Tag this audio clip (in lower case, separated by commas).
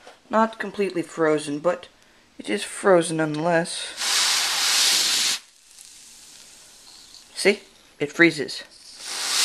speech, spray